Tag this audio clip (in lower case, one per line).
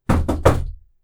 door
wood
domestic sounds
knock